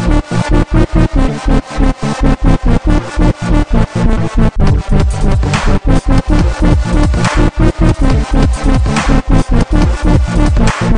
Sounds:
dubstep, electronic music, music

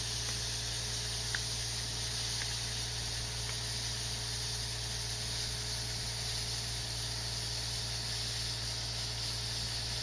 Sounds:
drill, vehicle

